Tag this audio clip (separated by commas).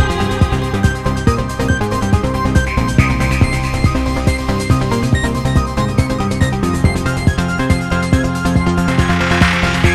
Music